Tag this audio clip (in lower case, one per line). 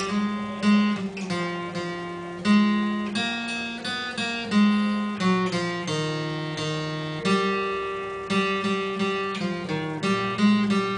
music
strum
acoustic guitar
plucked string instrument
musical instrument
guitar